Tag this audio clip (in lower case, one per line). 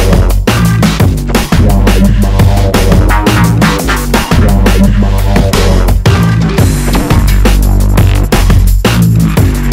drum and bass
music
electronic music